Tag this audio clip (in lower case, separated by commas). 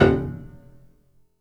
piano, keyboard (musical), musical instrument, music